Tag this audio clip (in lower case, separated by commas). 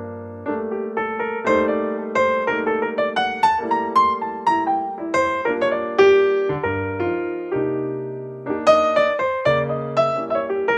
music, electric piano